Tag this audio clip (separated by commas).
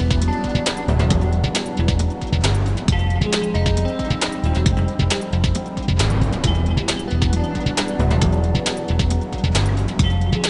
Music